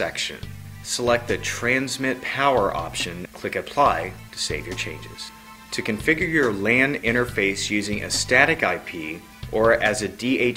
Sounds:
music, speech

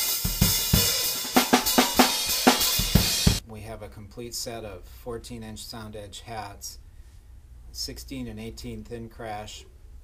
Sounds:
speech, music

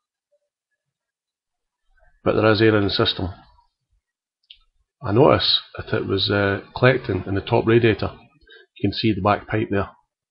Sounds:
speech

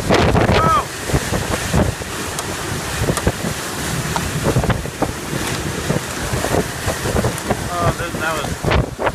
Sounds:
speech

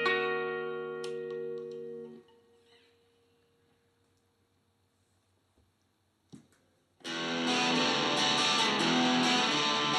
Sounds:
music, plucked string instrument, musical instrument, guitar

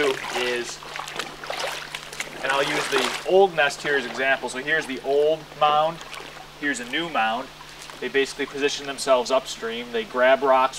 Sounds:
dribble, stream, speech

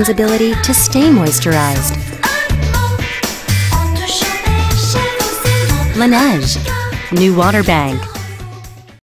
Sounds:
music, speech

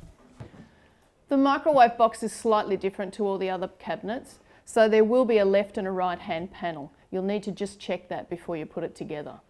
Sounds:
speech, wood

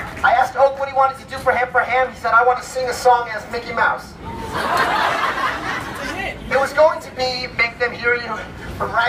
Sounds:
speech

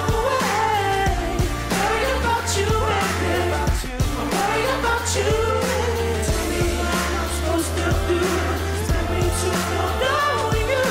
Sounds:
singing, music

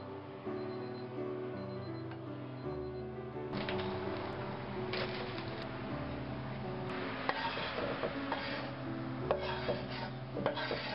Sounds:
music

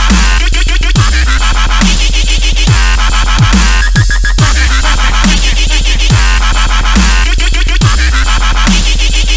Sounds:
electronic music, music, dubstep

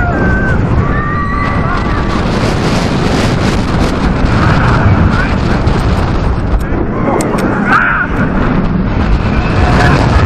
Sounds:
roller coaster running

